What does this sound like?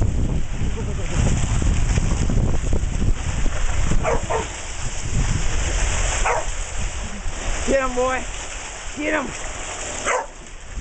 Water splashing, a dog barking, and a man talking